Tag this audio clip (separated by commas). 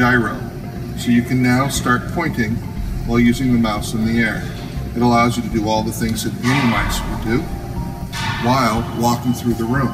Speech, Music